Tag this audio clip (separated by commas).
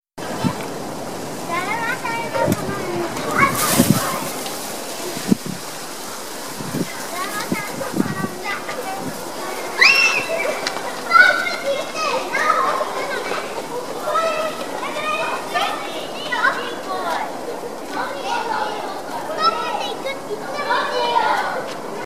Human group actions